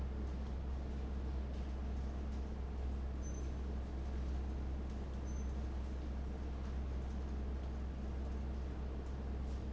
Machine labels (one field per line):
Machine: fan